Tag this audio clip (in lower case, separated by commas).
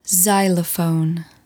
human voice, speech, woman speaking